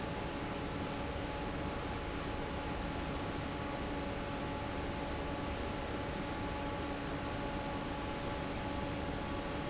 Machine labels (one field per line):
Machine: fan